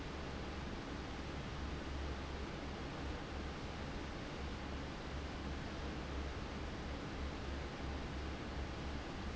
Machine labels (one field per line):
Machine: fan